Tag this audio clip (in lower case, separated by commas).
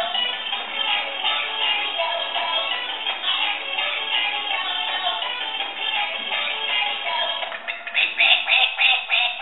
music, quack